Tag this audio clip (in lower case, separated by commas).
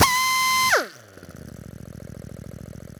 power tool, tools, drill